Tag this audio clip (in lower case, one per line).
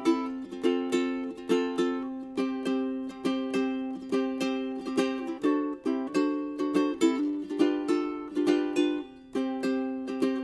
music